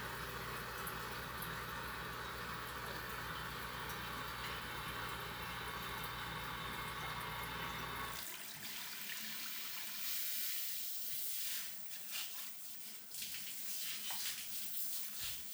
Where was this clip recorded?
in a restroom